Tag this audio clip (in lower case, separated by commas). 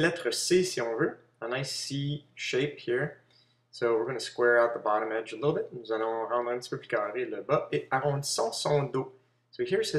speech, inside a small room